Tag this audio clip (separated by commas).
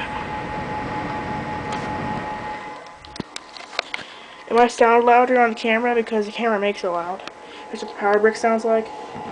Speech